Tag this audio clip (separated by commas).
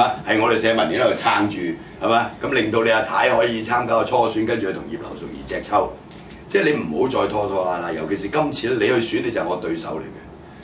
Radio, Speech